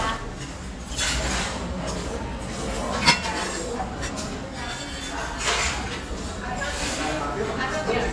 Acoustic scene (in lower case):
restaurant